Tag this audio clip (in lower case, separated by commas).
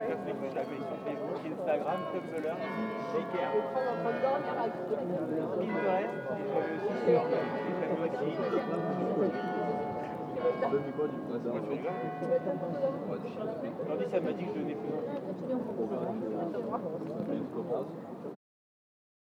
bell, church bell